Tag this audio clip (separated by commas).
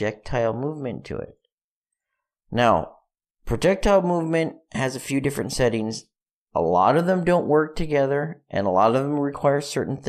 Speech